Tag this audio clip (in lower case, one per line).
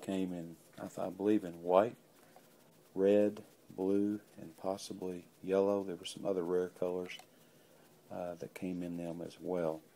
speech